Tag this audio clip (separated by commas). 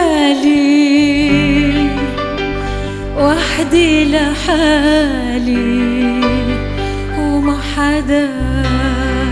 Music, Female singing